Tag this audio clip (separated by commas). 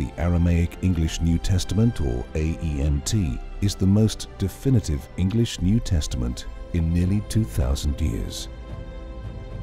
Speech, Music